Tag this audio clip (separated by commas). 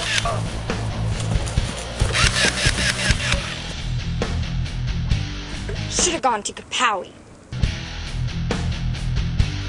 Speech, Music